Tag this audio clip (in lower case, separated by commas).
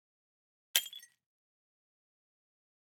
glass, shatter